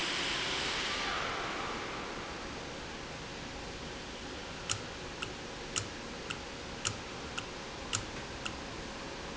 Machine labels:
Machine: valve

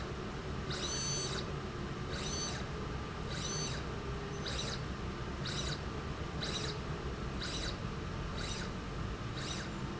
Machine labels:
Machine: slide rail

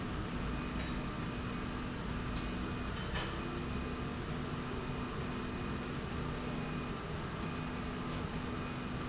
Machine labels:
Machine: slide rail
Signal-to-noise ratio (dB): -6 dB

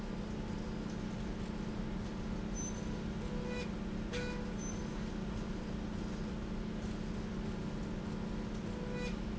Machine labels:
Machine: slide rail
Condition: normal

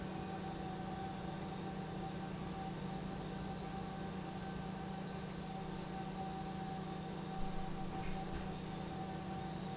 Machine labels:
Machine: pump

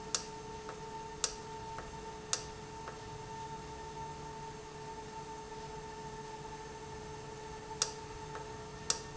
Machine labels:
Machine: valve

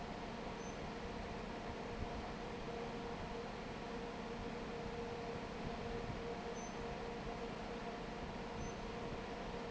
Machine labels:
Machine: fan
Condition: normal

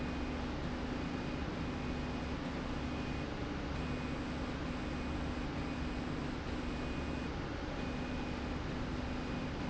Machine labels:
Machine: slide rail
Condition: normal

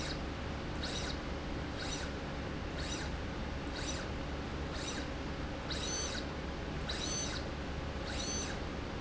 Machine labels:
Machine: slide rail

